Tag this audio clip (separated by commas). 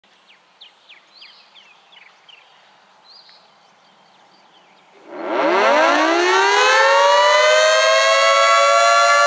Siren, Civil defense siren